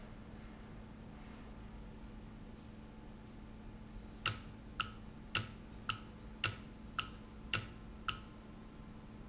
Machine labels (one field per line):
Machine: valve